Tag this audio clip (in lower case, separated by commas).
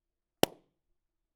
explosion